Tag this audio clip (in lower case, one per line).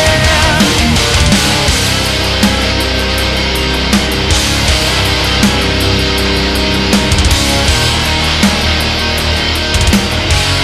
angry music
music